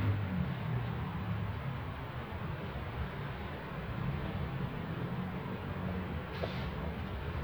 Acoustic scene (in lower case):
residential area